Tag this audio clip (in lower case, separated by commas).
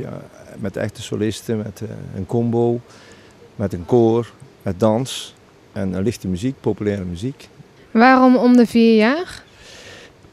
speech